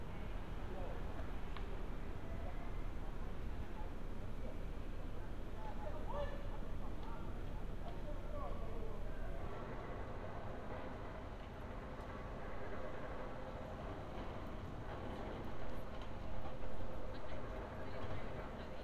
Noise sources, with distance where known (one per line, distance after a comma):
background noise